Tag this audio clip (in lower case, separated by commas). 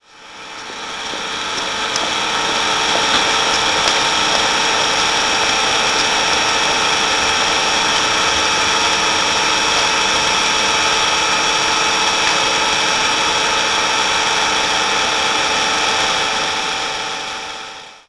engine, idling